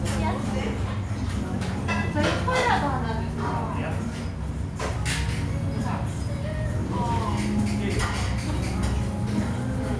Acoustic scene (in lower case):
restaurant